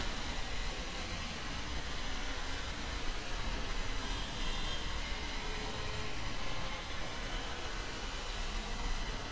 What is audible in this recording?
car horn